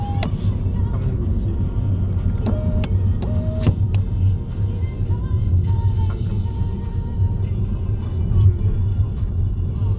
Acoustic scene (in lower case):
car